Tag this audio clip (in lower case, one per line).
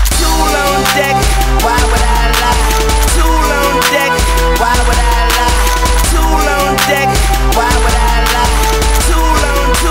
music